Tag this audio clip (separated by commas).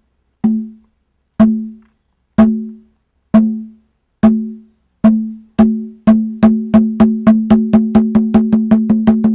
playing congas